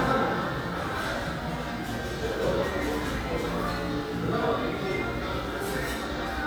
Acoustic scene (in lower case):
cafe